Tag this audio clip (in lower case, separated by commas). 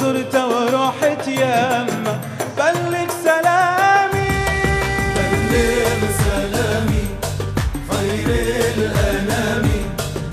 music